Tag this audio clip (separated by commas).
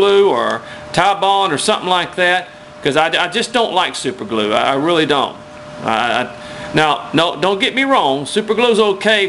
Speech